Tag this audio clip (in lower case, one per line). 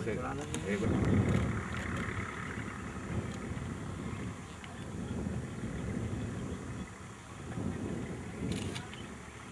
speech